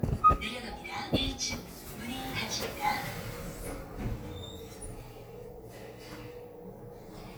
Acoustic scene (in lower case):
elevator